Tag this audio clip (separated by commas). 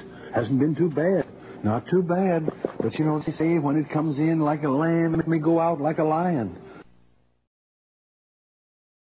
Speech